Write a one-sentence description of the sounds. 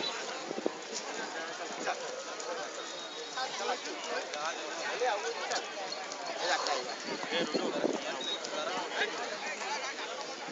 Several people chatter and talk over rustling wind